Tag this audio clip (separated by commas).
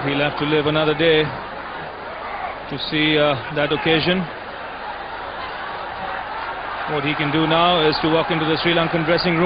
Speech